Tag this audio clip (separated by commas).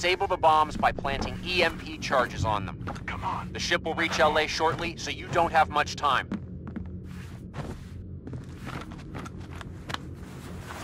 Speech